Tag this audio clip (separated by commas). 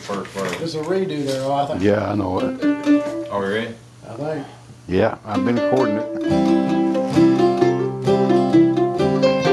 Guitar, Speech, Music, Musical instrument, Plucked string instrument